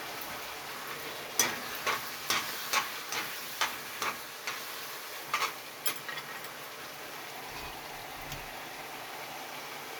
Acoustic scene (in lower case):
kitchen